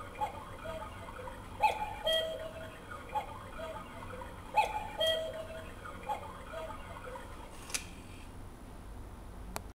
A cuckoo clock making high pitched sounds